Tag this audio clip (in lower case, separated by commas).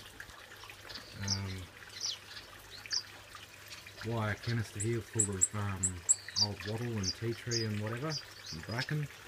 speech, bird